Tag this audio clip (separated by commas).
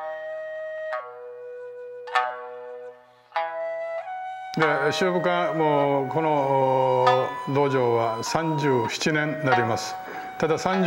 Flute